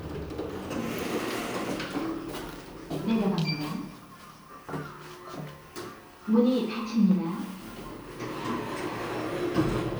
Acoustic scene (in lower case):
elevator